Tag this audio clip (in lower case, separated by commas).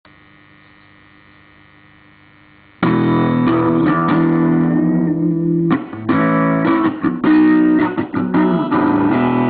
guitar, effects unit, plucked string instrument, music